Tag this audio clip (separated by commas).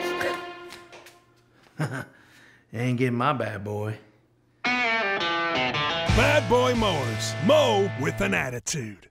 Music, Speech